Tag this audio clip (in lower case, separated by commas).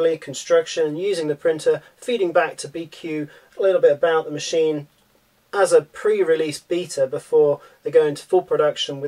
speech